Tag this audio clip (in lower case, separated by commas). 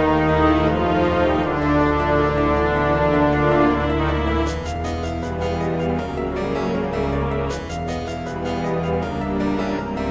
video game music, music